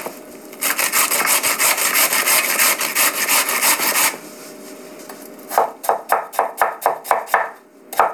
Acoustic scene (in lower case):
kitchen